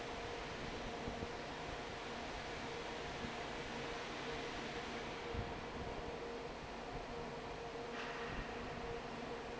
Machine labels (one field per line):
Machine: fan